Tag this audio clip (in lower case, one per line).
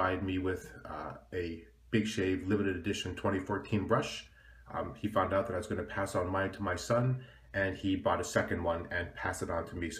speech